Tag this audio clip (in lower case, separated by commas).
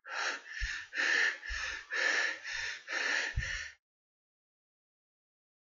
breathing, respiratory sounds